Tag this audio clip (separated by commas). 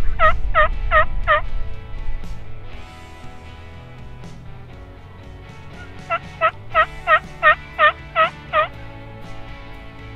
turkey gobbling